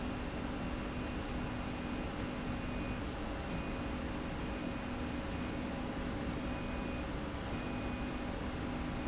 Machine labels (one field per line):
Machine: slide rail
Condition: normal